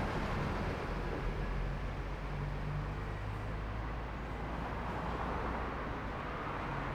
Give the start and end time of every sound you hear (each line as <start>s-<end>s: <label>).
0.0s-5.5s: bus
0.0s-5.5s: bus engine accelerating
1.3s-5.5s: bus engine idling
3.0s-3.8s: bus compressor
3.9s-6.9s: car
3.9s-6.9s: car wheels rolling
4.1s-5.1s: bus compressor